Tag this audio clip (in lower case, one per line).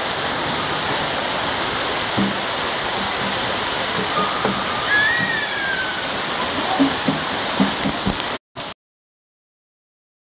waterfall